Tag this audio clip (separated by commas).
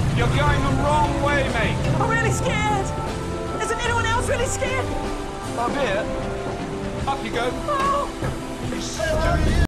Speech, Music